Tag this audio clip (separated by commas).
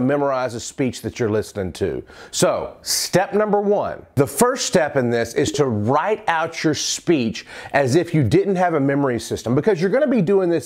man speaking, Speech